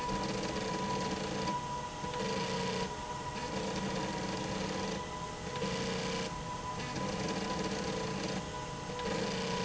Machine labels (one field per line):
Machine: slide rail